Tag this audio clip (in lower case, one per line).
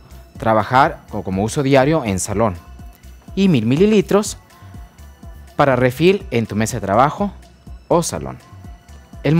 speech
music